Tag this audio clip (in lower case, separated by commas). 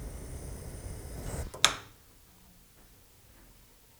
fire